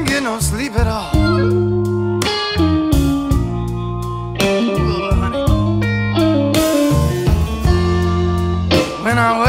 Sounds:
music, guitar, speech

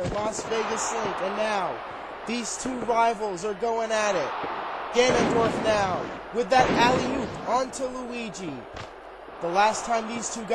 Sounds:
speech

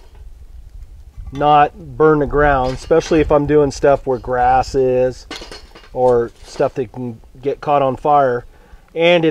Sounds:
dishes, pots and pans, silverware

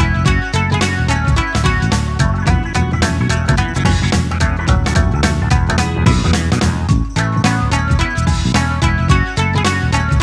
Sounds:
music

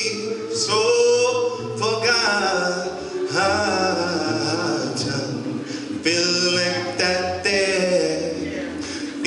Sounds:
male singing, music

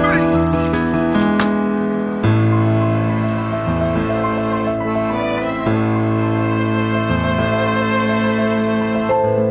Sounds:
music

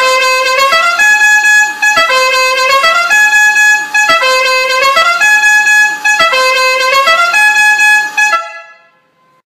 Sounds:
car horn

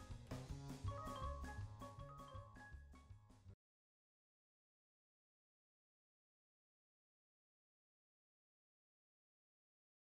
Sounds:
music

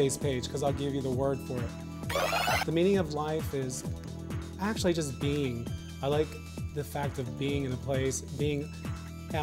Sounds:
music, speech

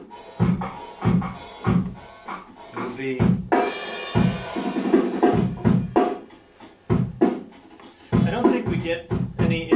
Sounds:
speech, musical instrument, drum, music, inside a small room

